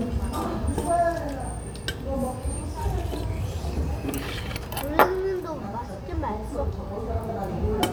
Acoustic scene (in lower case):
restaurant